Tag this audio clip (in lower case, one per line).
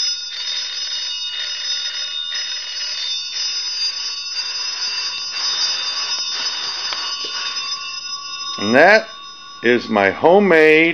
telephone bell ringing